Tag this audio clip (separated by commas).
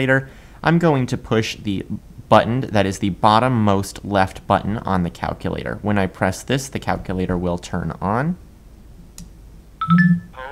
Speech, monologue, man speaking